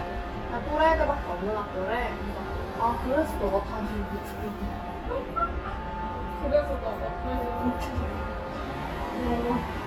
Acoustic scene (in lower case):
restaurant